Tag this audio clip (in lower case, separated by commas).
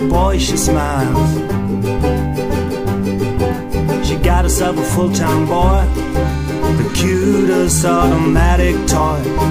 music